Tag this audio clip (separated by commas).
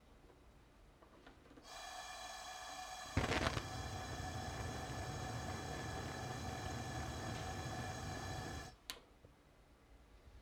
Explosion, Fire, Tick, Hiss